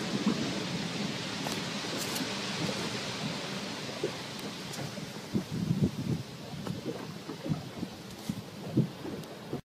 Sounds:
Explosion

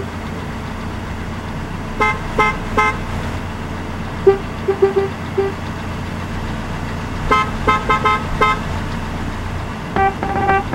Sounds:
honking

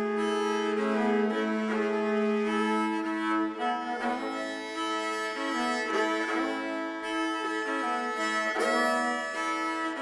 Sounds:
Bowed string instrument, Violin

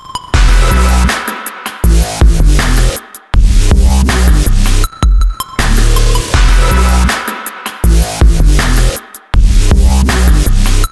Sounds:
Music, Drum and bass

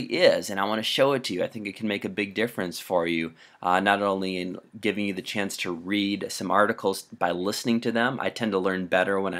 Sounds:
Speech

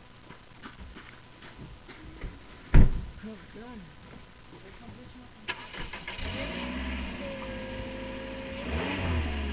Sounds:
Car, Vehicle, Speech

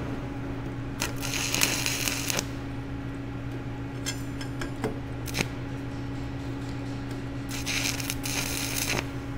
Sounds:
arc welding

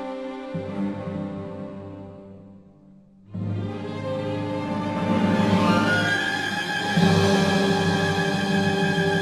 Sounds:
Music

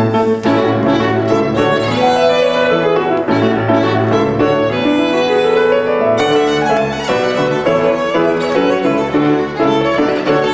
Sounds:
fiddle, Music, Musical instrument

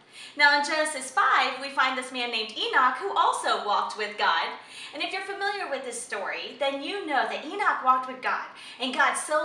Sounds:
Speech

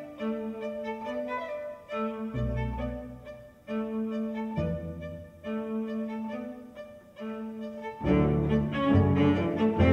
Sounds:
Double bass, Violin, Cello, Bowed string instrument

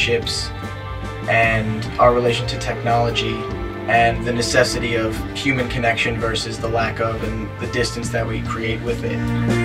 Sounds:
Music, Speech

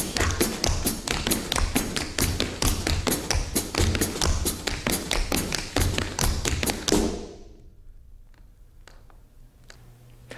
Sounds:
Tap, Music

